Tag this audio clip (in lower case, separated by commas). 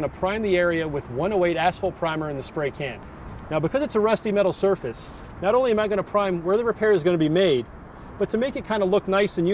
speech